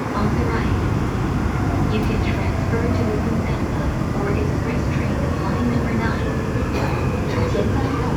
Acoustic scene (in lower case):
subway train